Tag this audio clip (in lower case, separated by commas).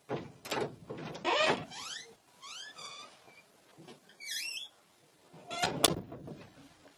home sounds, door, squeak, slam